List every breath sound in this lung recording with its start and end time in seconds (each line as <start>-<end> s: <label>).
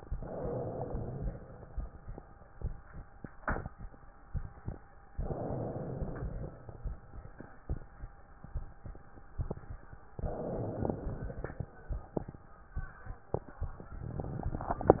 0.08-1.66 s: inhalation
5.17-6.75 s: inhalation
10.13-11.71 s: inhalation
14.22-15.00 s: inhalation